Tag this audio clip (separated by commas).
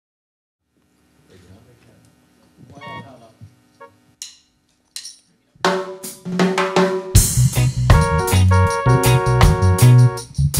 Speech, Music, inside a large room or hall